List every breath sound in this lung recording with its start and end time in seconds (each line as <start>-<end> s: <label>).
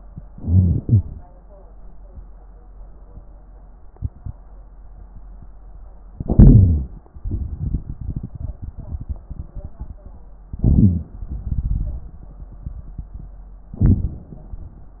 0.14-0.81 s: crackles
0.20-0.83 s: inhalation
0.82-1.23 s: exhalation
0.82-1.23 s: crackles
6.10-6.97 s: crackles
6.14-7.01 s: inhalation
10.48-11.16 s: crackles
10.52-11.14 s: inhalation
13.76-14.97 s: inhalation
13.76-14.97 s: crackles